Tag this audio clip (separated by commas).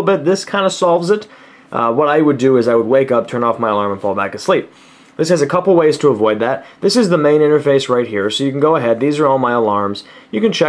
Speech